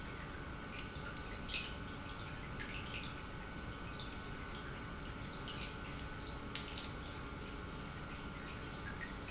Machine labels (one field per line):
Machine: pump